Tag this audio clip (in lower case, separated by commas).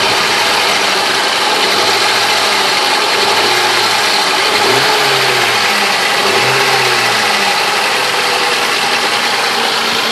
vibration, engine